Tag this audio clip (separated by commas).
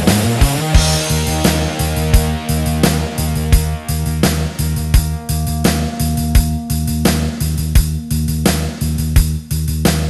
Music